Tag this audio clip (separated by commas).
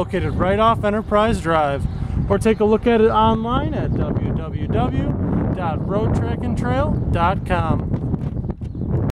Speech